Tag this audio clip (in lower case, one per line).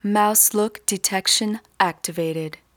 speech
female speech
human voice